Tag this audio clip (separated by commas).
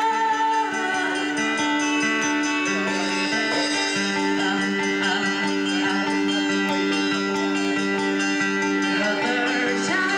Music